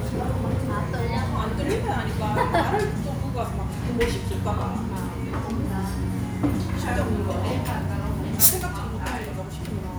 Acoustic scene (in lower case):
restaurant